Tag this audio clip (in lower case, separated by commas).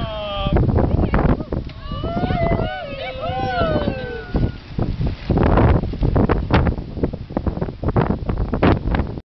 speech